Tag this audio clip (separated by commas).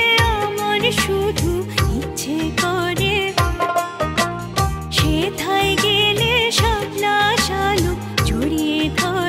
Singing, Music of Bollywood, Music